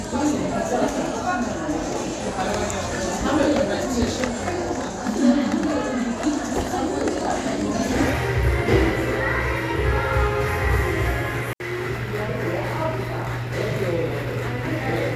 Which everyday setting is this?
crowded indoor space